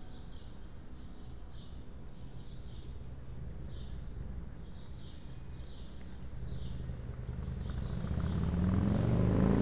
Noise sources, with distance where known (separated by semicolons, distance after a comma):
engine of unclear size